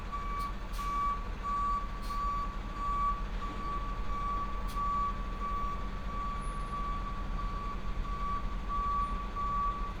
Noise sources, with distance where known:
unidentified alert signal

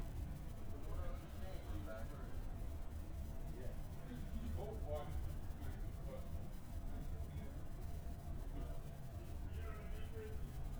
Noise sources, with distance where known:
person or small group talking, far

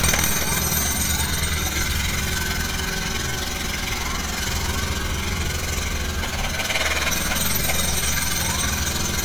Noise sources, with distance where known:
jackhammer, near; siren, far

